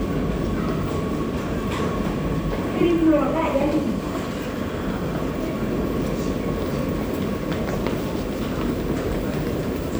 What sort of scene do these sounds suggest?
subway station